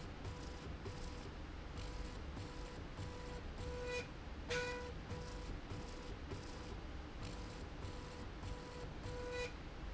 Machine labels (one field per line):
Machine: slide rail